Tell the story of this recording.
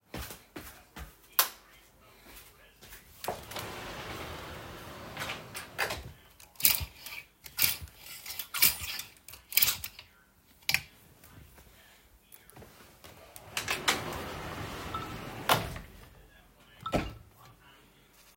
I walked into the bedroom and turned on the light. I walked to the wardrobe, opened it, and searched through my clothes. After picking an item, I closed the door while receiving a notification on my phone.